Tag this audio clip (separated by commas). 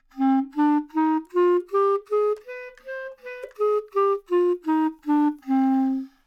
Wind instrument, Musical instrument, Music